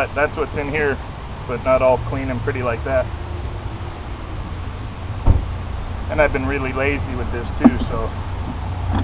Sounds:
Speech

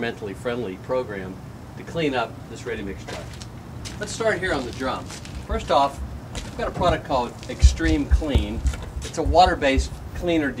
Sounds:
Speech

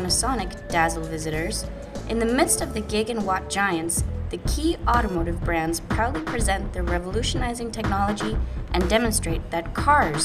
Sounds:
Music, Speech

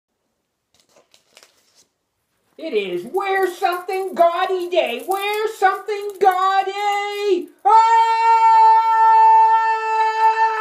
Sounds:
Speech, inside a small room

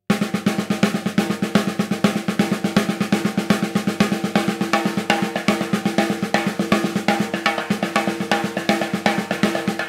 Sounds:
Drum, Musical instrument, Bass drum, Percussion, playing bass drum, Music

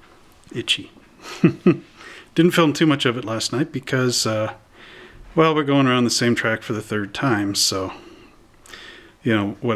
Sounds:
Speech

